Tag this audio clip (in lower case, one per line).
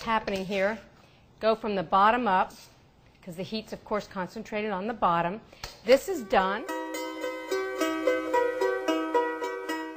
music
speech
zither